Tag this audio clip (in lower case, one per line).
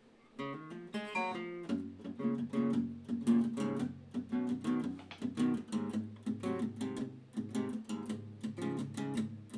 plucked string instrument
musical instrument
electric guitar
guitar
strum
music